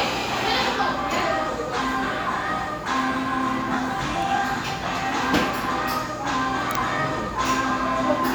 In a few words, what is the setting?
cafe